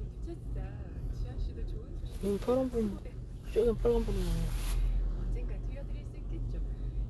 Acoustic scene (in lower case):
car